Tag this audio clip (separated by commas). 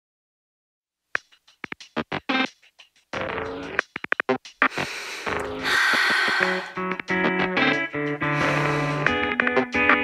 Music